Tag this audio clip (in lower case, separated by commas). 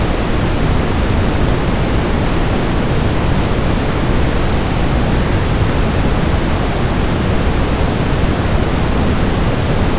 water